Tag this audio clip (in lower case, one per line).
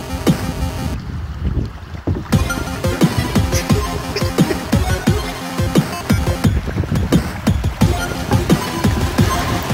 waves